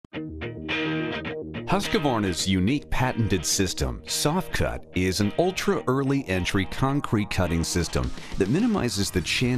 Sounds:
music, speech

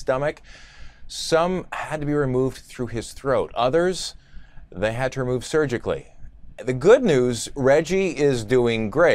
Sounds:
speech

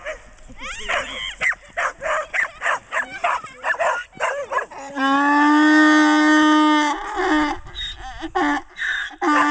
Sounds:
ass braying

